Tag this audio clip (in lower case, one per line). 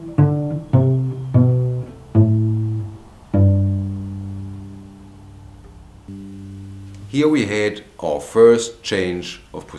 musical instrument
speech
music
violin